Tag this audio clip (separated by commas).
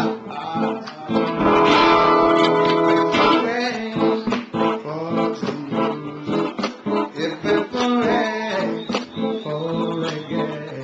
Guitar, Musical instrument, Plucked string instrument, Music, Reggae